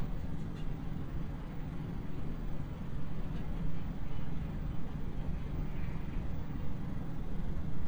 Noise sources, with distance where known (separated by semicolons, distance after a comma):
engine of unclear size, far